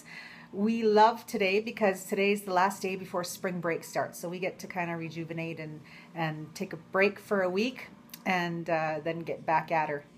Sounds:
speech

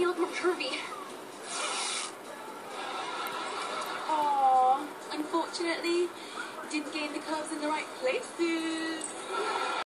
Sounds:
speech
music
zipper (clothing)

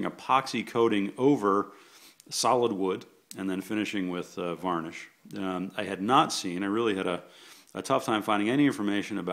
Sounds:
speech

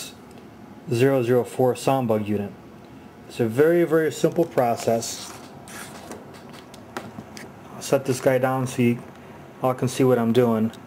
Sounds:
speech

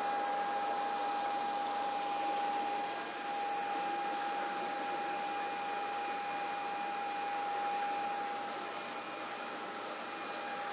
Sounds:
stream

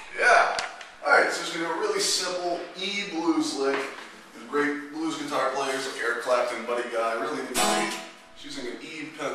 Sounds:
music
strum
musical instrument
acoustic guitar
guitar
speech
plucked string instrument

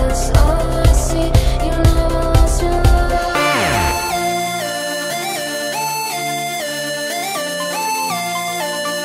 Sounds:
music

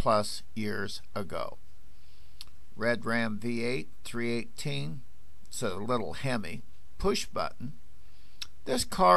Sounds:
speech

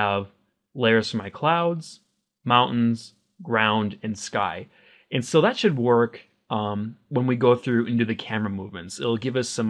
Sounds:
speech

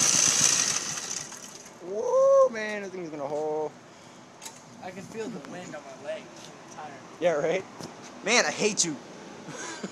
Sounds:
medium engine (mid frequency)
engine
speech
vehicle
car

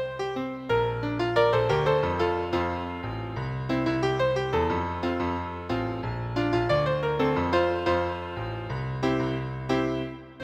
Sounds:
music
musical instrument

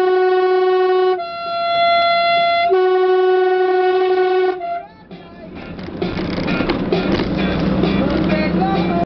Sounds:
truck
honking
music
vehicle
outside, urban or man-made

